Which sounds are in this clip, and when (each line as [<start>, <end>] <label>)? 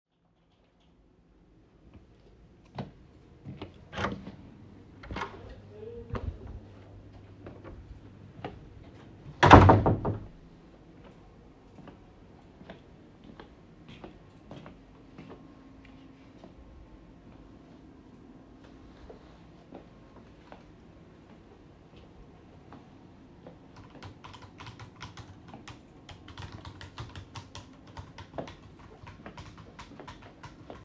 [2.53, 8.74] footsteps
[3.83, 6.40] door
[9.32, 10.51] door
[10.80, 30.85] footsteps
[23.31, 30.85] keyboard typing